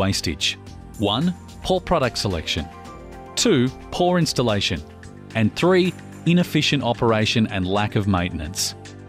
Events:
[0.01, 0.60] man speaking
[0.01, 9.05] music
[0.90, 1.34] man speaking
[1.60, 2.75] man speaking
[3.28, 3.66] man speaking
[3.81, 4.74] man speaking
[5.29, 5.91] man speaking
[6.13, 8.51] man speaking

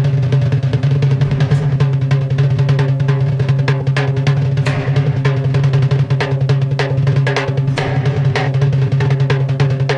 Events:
[0.00, 9.95] music

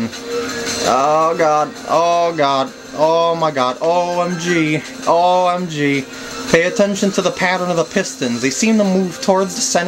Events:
[0.00, 9.85] mechanisms
[0.00, 9.85] music
[0.00, 9.85] video game sound
[0.61, 0.88] generic impact sounds
[0.81, 1.66] man speaking
[1.84, 2.66] man speaking
[2.94, 3.72] man speaking
[3.77, 3.84] generic impact sounds
[3.80, 4.78] man speaking
[4.84, 4.90] generic impact sounds
[5.02, 5.15] generic impact sounds
[5.03, 6.01] man speaking
[6.50, 9.85] man speaking
[9.15, 9.26] generic impact sounds

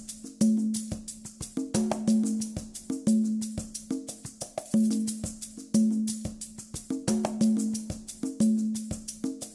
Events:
[0.00, 9.54] music

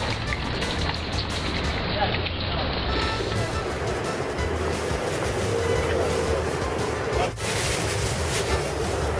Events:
[0.00, 3.28] pour
[0.00, 9.15] music
[0.00, 9.15] roadway noise
[1.91, 2.91] man speaking
[4.65, 6.43] crumpling
[5.46, 6.40] brief tone
[7.14, 7.37] generic impact sounds
[7.33, 9.12] crumpling

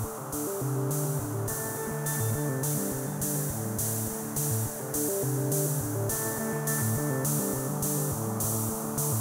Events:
[0.00, 9.20] music

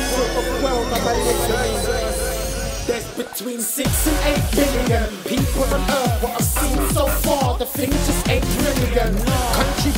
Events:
[0.00, 2.65] speech babble
[0.00, 3.06] sound effect
[0.00, 9.95] music
[2.83, 5.07] rapping
[5.26, 9.95] rapping

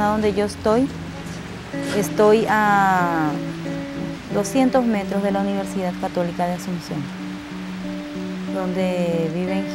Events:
[0.00, 0.84] woman speaking
[0.00, 9.74] music
[0.00, 9.74] rain
[1.19, 1.39] surface contact
[1.68, 3.34] woman speaking
[4.25, 6.96] woman speaking
[8.51, 9.74] woman speaking

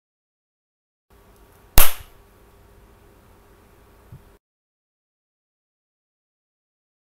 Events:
[1.06, 4.35] mechanisms
[1.29, 1.36] tick
[1.47, 1.56] tick
[1.74, 2.07] smack

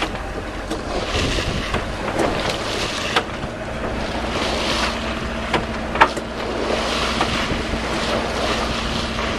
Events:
[0.00, 9.35] sailboat
[0.00, 9.35] surf
[7.18, 9.35] wind noise (microphone)

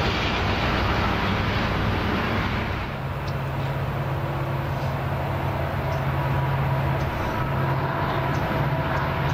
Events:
[0.00, 9.33] train
[3.23, 3.72] generic impact sounds
[4.63, 4.97] generic impact sounds
[5.89, 6.16] generic impact sounds
[6.93, 7.47] generic impact sounds
[8.21, 8.52] generic impact sounds
[8.81, 9.06] generic impact sounds
[9.24, 9.33] generic impact sounds

